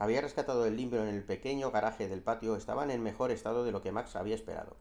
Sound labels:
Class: speech